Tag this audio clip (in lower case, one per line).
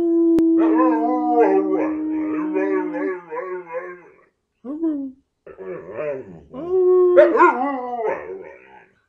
dog howling